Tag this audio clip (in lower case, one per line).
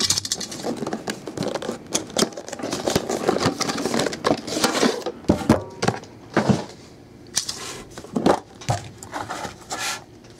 inside a small room